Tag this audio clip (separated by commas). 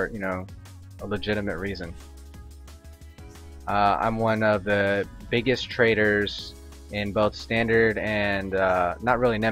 Music, Speech